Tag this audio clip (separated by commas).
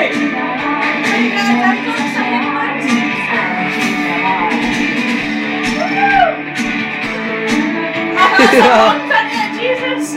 Music, Speech